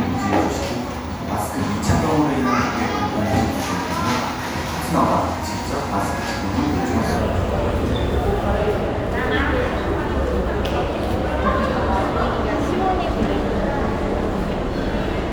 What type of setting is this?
crowded indoor space